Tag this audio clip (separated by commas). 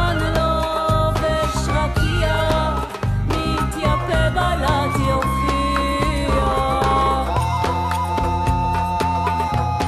Music, Middle Eastern music